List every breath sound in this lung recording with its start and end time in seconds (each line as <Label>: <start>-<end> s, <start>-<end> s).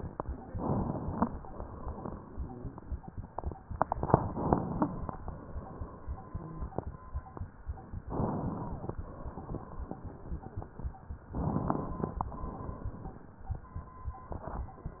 Inhalation: 0.46-1.39 s, 4.21-5.16 s, 8.06-8.99 s, 11.31-12.26 s
Exhalation: 1.37-2.30 s, 5.24-6.83 s, 9.01-10.02 s, 12.29-13.40 s